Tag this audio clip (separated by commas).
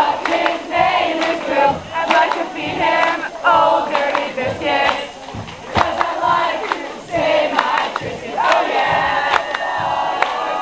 Speech